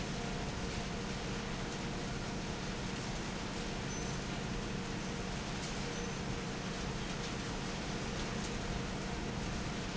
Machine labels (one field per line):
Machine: fan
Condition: normal